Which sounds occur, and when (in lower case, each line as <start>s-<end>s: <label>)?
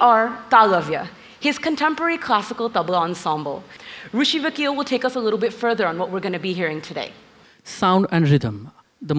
0.0s-1.1s: woman speaking
0.0s-9.1s: background noise
1.1s-1.4s: breathing
1.4s-3.6s: woman speaking
3.6s-4.1s: breathing
4.1s-7.1s: woman speaking
7.3s-7.6s: breathing
7.6s-8.8s: woman speaking
9.0s-9.1s: woman speaking